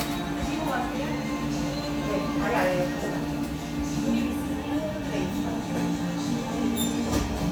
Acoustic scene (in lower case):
cafe